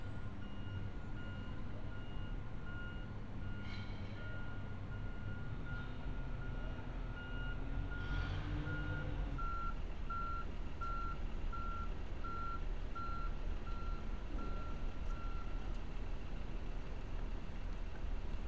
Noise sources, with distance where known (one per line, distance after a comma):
reverse beeper